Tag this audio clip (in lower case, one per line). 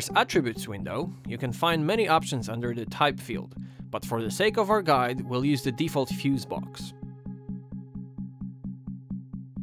music
speech